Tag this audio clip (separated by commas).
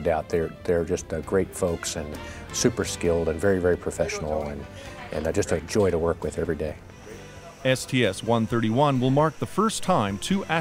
Speech, Music